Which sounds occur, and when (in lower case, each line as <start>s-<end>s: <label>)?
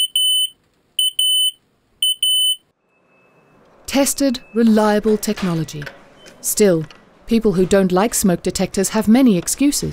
0.0s-0.5s: smoke detector
0.0s-9.9s: mechanisms
0.6s-0.7s: generic impact sounds
1.0s-1.6s: smoke detector
2.0s-2.6s: smoke detector
2.8s-3.6s: bleep
3.6s-3.7s: generic impact sounds
3.8s-4.4s: female speech
4.0s-4.6s: bleep
4.5s-5.9s: female speech
4.6s-4.8s: generic impact sounds
5.0s-5.9s: generic impact sounds
5.2s-5.9s: bleep
6.1s-6.3s: bleep
6.2s-6.3s: generic impact sounds
6.4s-6.9s: female speech
6.7s-7.0s: generic impact sounds
6.8s-7.0s: bleep
7.3s-9.9s: female speech
7.5s-7.7s: generic impact sounds
9.4s-9.6s: generic impact sounds